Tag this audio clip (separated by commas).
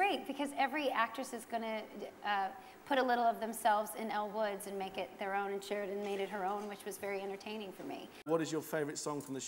Speech